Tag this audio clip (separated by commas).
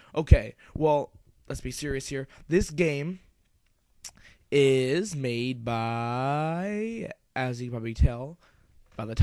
Speech